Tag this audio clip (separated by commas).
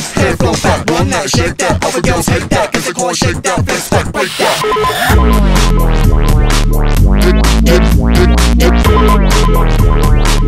Music, Sampler